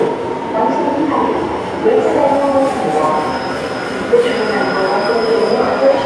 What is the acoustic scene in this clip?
subway station